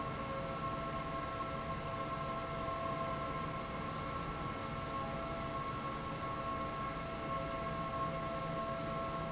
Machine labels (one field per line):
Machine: fan